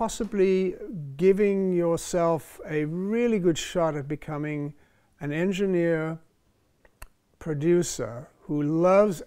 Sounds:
speech

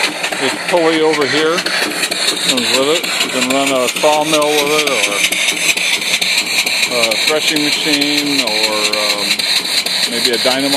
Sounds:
speech

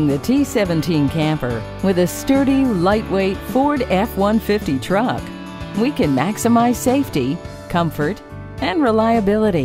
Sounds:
music, speech

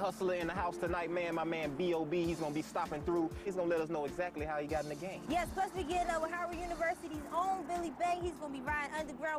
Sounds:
speech, music

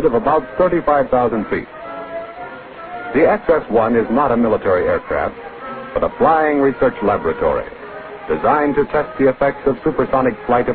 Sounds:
speech, music

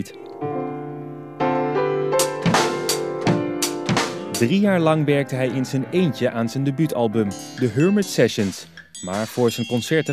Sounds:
music, speech

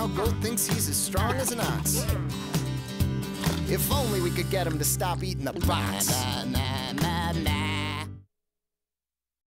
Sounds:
music, speech

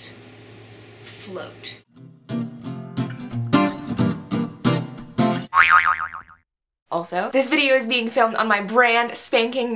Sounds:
music, inside a small room, speech, boing

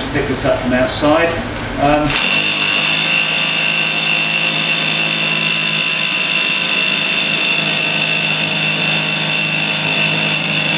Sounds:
speech, drill

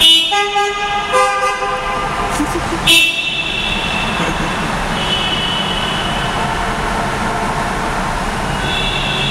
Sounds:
honking

